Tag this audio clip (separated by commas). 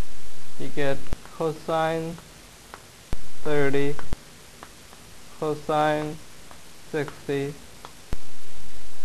Speech